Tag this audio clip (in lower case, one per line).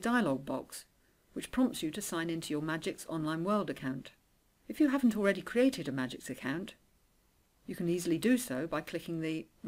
monologue
speech